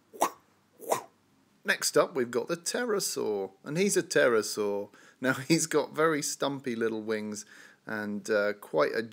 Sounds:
inside a small room, speech

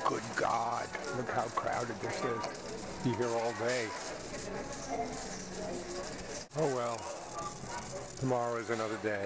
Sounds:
speech, music

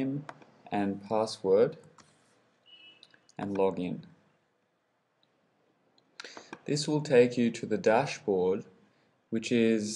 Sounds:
speech

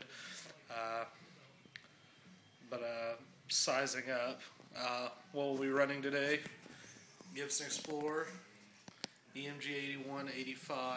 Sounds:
speech

